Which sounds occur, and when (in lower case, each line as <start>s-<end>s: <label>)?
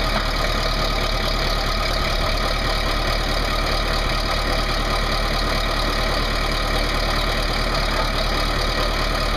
0.0s-9.3s: heavy engine (low frequency)